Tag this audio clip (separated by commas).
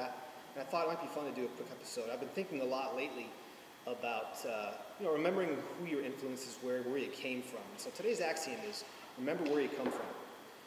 Speech